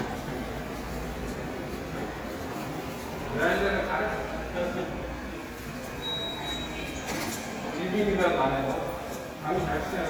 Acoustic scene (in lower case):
subway station